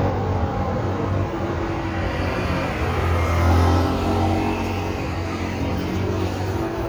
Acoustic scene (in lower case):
street